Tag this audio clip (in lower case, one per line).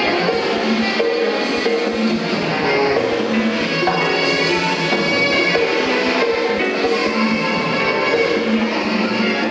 orchestra
drum
jazz
musical instrument
drum kit
saxophone
music